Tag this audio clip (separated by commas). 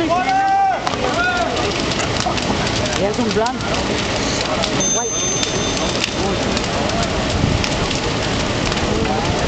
Speech, Vehicle, Bus